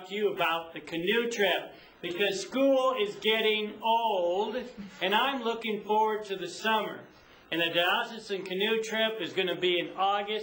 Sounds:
speech

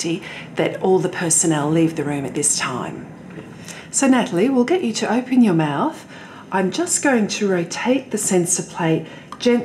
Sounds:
speech

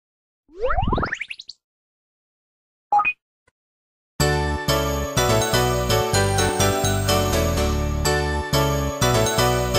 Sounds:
music

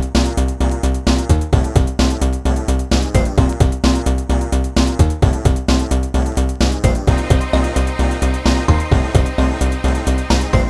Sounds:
music

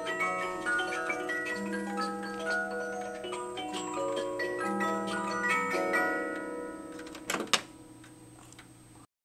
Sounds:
music

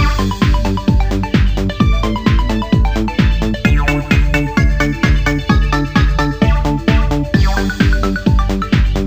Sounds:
music

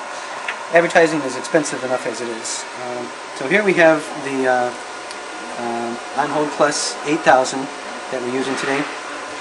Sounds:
speech

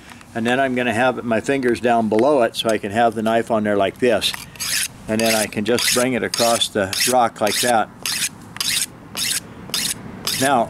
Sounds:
sharpen knife

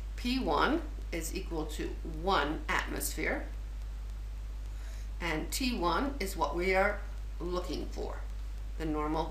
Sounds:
speech

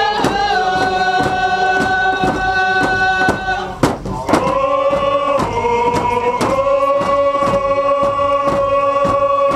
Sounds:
rowboat

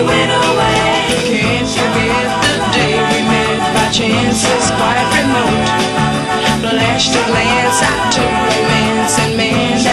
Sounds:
music

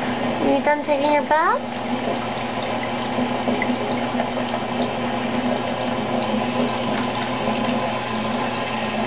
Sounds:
speech

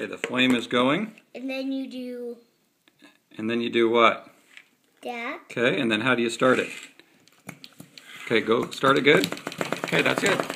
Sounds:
speech

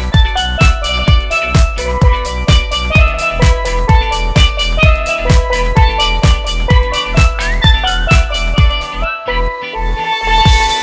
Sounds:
playing steelpan

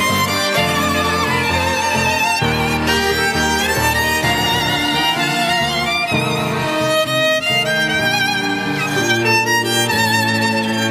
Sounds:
musical instrument
music
fiddle
bowed string instrument
violin

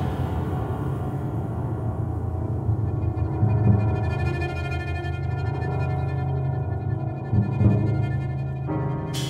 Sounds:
music
background music

